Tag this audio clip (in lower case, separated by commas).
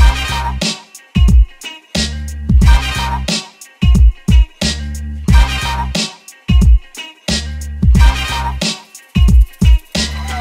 music